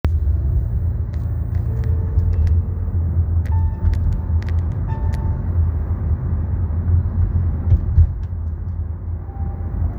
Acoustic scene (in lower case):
car